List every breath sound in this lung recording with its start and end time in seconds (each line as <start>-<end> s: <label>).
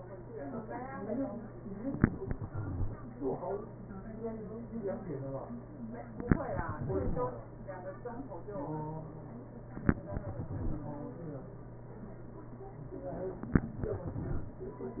2.08-3.00 s: exhalation
6.27-7.19 s: exhalation
10.01-11.11 s: exhalation
13.73-14.83 s: exhalation